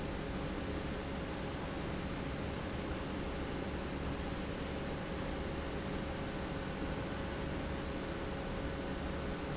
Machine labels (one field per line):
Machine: pump